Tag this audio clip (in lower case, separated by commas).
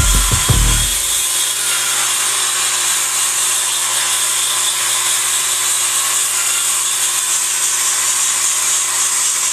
music